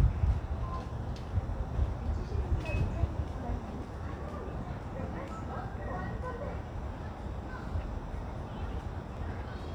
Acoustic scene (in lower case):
residential area